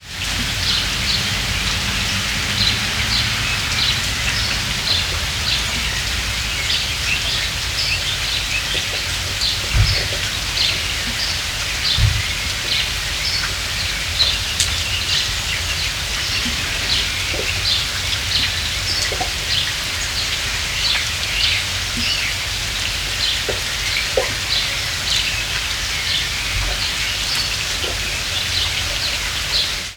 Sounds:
water
rain

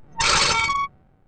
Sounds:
screech

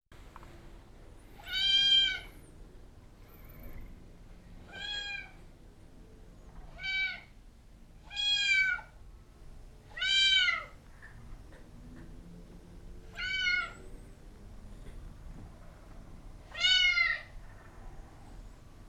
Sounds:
domestic animals
animal
cat
meow

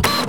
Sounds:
mechanisms
printer

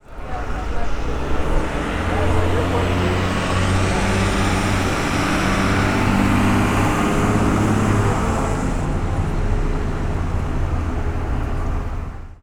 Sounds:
vehicle

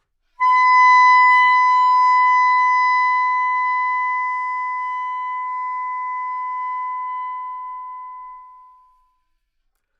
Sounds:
woodwind instrument
music
musical instrument

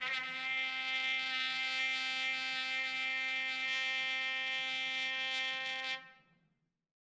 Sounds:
music
brass instrument
trumpet
musical instrument

